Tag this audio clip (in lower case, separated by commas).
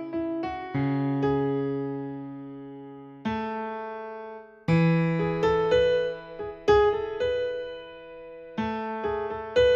electric piano, piano, keyboard (musical)